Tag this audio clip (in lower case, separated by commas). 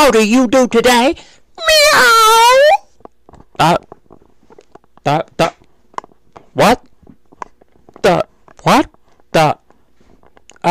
speech